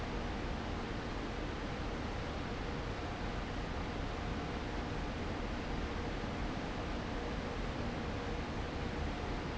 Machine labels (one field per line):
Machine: fan